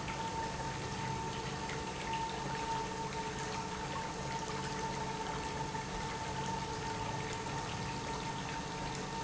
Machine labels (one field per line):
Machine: pump